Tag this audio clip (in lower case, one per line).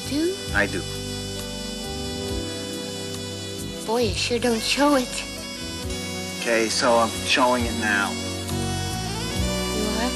music
speech